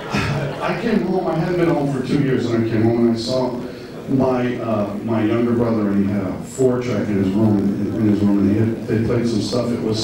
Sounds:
Speech

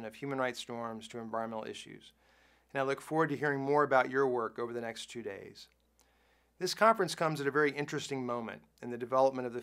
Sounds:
Speech, Male speech

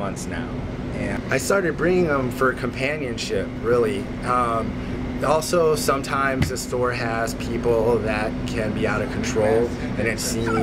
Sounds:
Speech

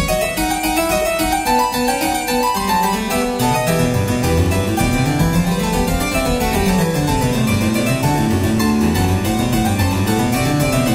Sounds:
Piano, Keyboard (musical)

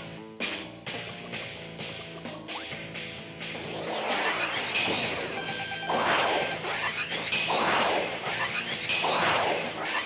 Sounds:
Music

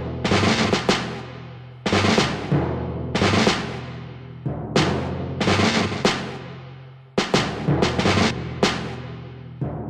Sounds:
Music, Timpani

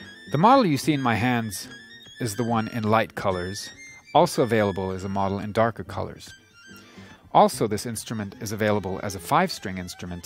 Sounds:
fiddle, Musical instrument, Music, Speech

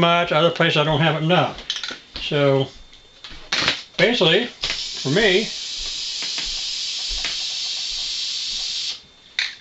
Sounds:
Speech

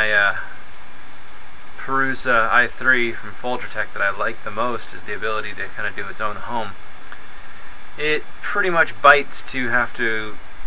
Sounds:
Speech

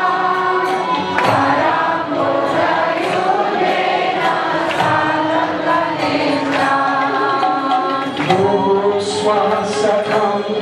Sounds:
Music, Female singing, Male singing

